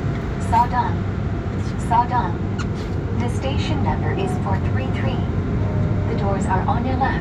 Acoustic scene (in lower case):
subway train